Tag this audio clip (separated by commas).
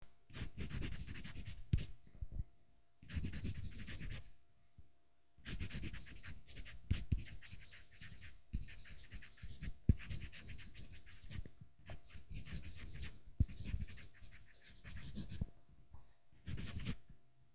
Writing, Domestic sounds